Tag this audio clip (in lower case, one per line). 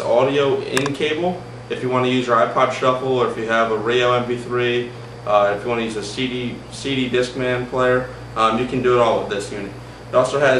speech